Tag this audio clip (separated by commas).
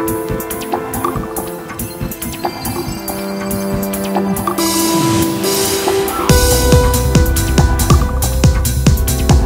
Music